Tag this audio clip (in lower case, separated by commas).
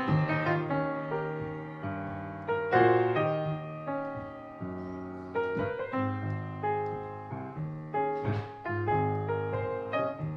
music